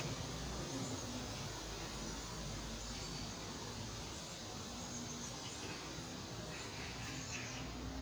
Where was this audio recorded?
in a park